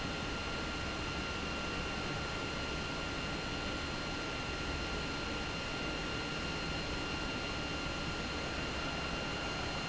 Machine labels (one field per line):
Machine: pump